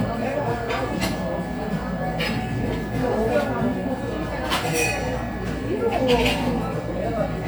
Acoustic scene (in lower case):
cafe